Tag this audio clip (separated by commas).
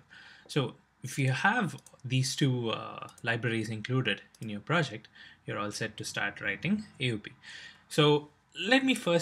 Speech